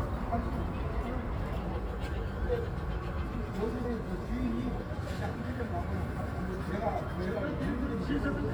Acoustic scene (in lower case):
park